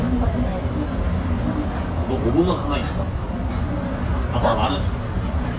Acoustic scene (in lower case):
restaurant